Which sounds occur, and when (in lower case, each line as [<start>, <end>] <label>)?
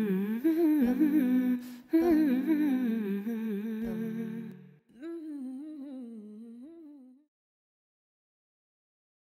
[0.00, 1.52] humming
[0.00, 4.78] music
[1.58, 1.82] breathing
[1.82, 7.25] humming